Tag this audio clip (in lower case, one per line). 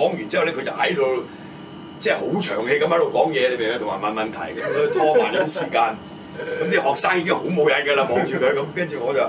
speech